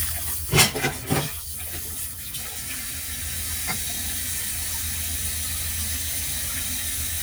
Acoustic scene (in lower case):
kitchen